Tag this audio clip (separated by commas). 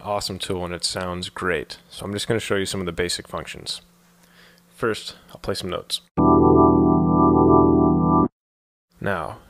Speech, Music